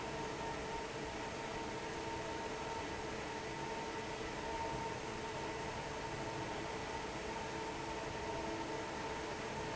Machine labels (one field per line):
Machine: fan